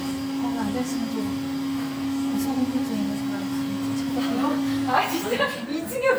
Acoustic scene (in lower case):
cafe